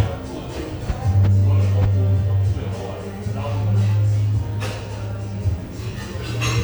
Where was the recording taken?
in a cafe